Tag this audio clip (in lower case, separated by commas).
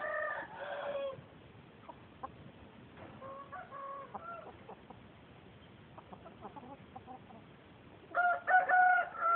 rooster, bird